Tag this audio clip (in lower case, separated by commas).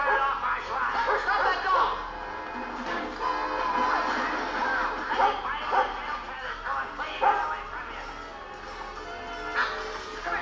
music, animal, speech